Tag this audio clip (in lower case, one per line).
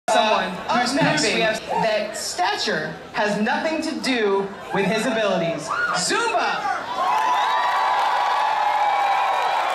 speech